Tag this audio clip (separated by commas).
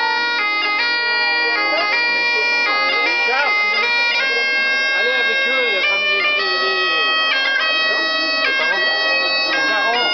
Music, Bagpipes, Speech